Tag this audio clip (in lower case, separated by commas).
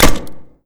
explosion, gunshot